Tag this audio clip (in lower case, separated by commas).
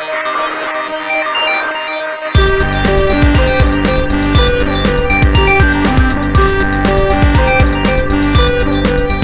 electric piano, music